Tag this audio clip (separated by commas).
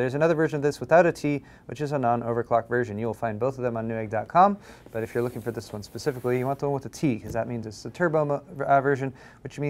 Speech